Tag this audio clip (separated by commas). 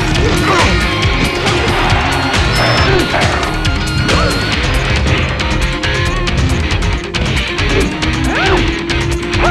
Music